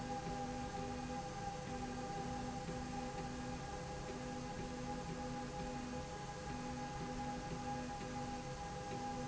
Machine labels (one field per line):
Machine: slide rail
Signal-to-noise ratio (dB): 0 dB